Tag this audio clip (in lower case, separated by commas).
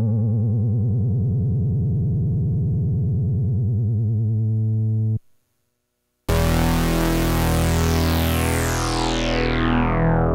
electric piano, keyboard (musical), piano